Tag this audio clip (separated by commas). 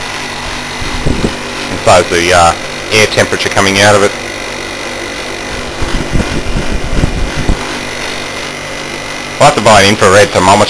Speech, Engine